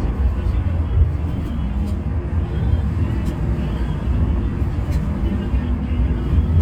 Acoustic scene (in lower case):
bus